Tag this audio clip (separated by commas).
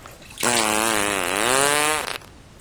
Fart